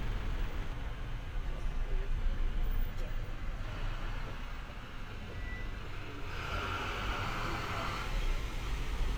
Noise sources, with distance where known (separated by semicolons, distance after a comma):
large-sounding engine, far